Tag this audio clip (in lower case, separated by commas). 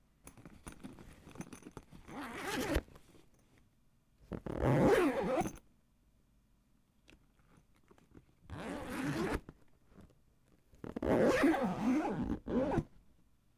zipper (clothing), home sounds